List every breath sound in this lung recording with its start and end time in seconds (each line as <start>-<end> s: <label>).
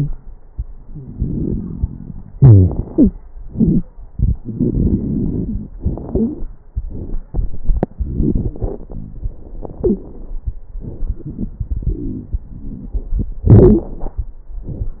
0.93-2.30 s: inhalation
0.93-2.30 s: crackles
2.33-2.73 s: wheeze
2.33-3.12 s: exhalation
2.88-3.14 s: wheeze
4.17-5.74 s: inhalation
4.17-5.74 s: crackles
5.77-6.48 s: exhalation
6.12-6.43 s: wheeze
7.95-9.21 s: inhalation
7.95-9.21 s: crackles
9.54-10.30 s: exhalation
9.82-10.07 s: wheeze
13.46-14.09 s: exhalation